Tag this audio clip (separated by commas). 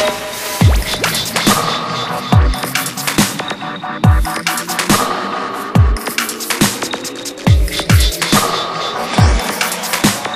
Music, Dubstep